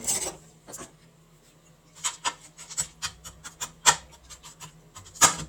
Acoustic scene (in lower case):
kitchen